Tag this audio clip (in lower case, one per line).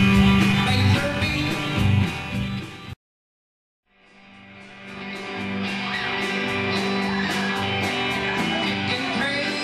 music